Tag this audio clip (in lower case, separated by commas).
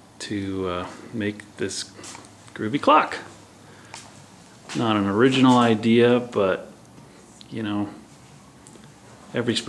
speech